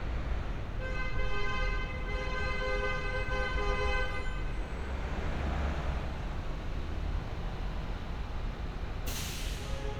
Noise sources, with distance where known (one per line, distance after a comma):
medium-sounding engine
car horn, far